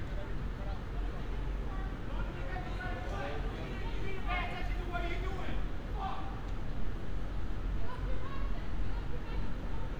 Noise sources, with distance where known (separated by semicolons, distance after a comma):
person or small group shouting, near